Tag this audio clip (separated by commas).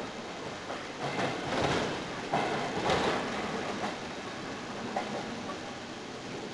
Vehicle, Rail transport, Train